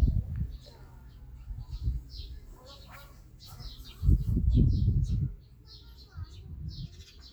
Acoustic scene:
park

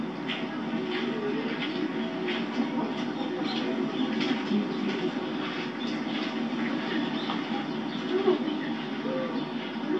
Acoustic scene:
park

